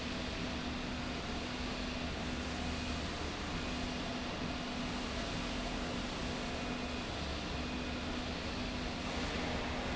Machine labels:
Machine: slide rail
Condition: normal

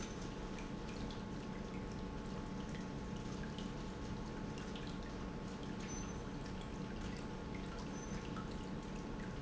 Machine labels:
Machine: pump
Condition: normal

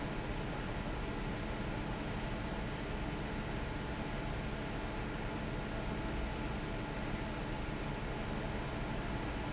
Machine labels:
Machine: fan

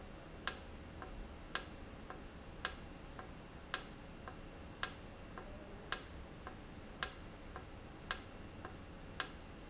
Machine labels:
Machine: valve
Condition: normal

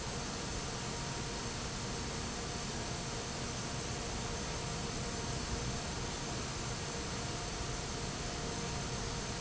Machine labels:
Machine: fan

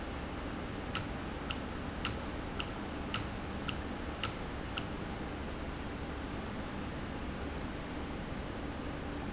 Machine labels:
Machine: valve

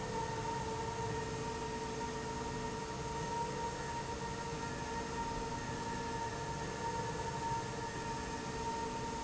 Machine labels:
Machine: slide rail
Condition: normal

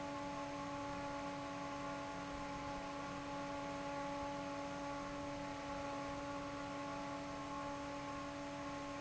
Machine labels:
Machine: fan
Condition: normal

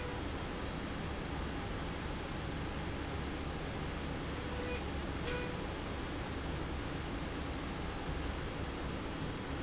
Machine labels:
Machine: slide rail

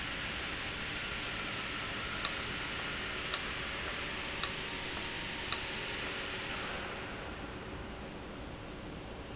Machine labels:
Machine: valve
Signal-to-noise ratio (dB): -6 dB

